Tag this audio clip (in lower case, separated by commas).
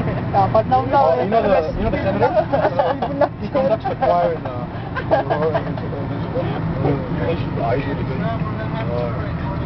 vehicle, speech